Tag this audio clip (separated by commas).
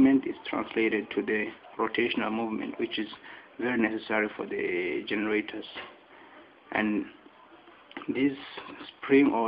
Speech